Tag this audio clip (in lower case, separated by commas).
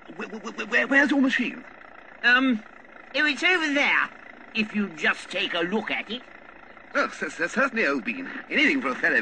speech